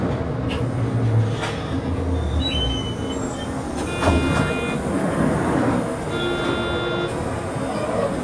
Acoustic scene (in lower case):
bus